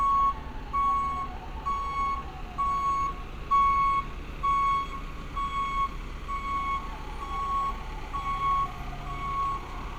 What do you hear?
reverse beeper